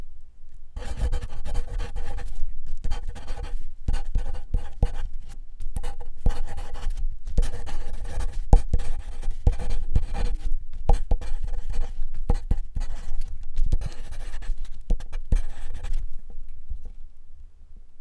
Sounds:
home sounds
writing

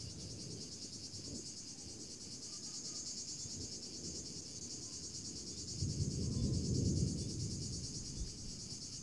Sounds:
thunder
animal
cricket
wild animals
insect
thunderstorm

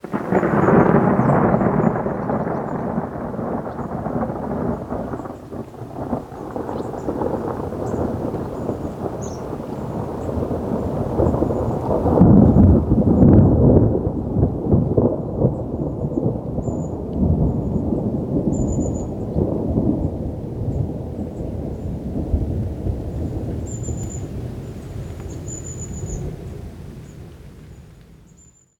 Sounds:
thunderstorm
thunder

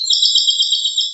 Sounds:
bird vocalization
bird
animal
wild animals

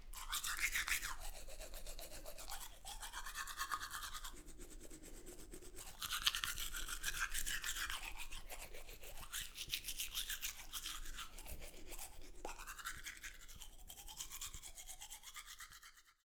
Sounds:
domestic sounds

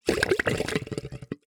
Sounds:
gurgling
water

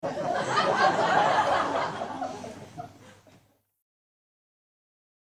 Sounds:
crowd
human voice
laughter
human group actions

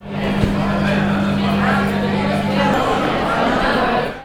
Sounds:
microwave oven
domestic sounds

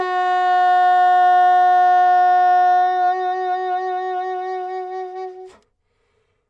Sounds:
music
musical instrument
wind instrument

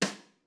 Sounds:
music
musical instrument
drum
percussion
snare drum

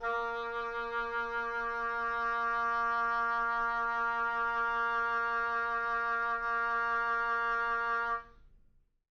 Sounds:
wind instrument
musical instrument
music

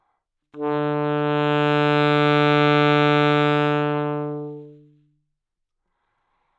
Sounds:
music
musical instrument
wind instrument

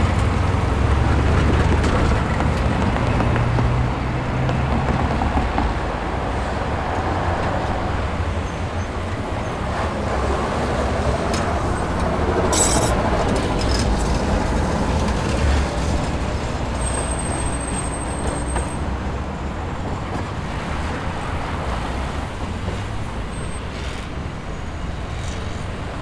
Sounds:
motor vehicle (road)
bus
vehicle

